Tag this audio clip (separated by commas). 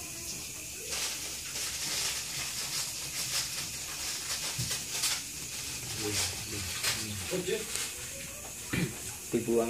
Speech